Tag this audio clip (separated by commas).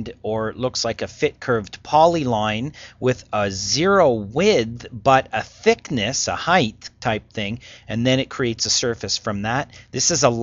monologue, Speech